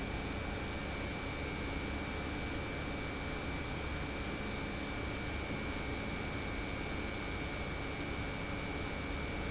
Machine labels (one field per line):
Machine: pump